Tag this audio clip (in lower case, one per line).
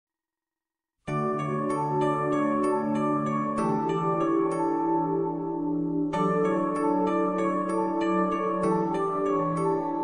music
lullaby